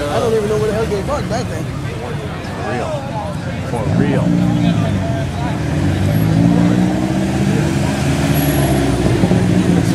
People talking next to a road with cars passing by